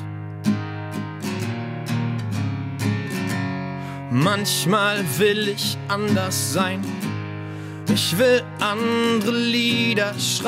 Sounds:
music

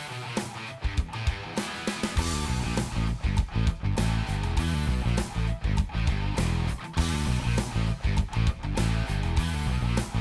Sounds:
music

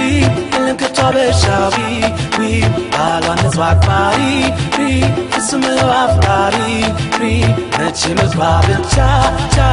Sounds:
theme music
music

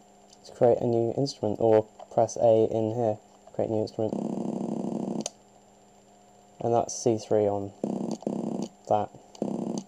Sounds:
speech

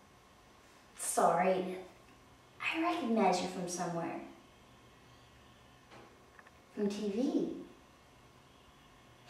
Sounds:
speech
monologue

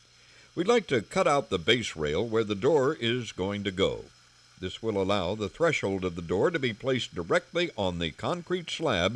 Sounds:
speech

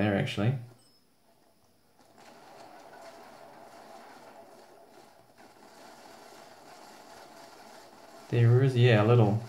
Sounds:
speech

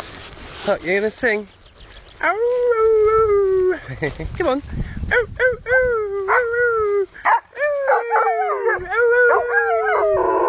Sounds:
speech

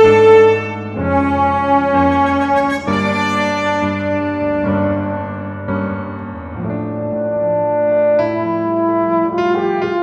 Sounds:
playing french horn

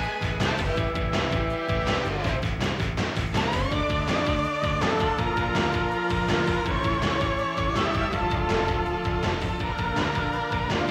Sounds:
music

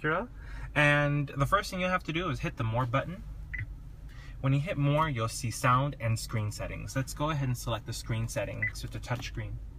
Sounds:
reversing beeps

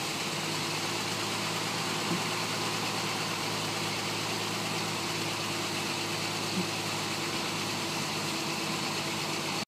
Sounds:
vehicle

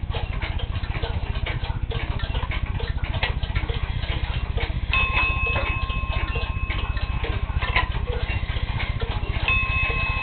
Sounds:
tick

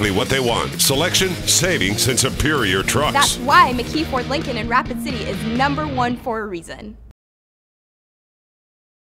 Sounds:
speech
music

